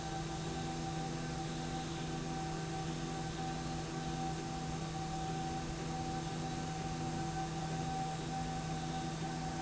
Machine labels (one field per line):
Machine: slide rail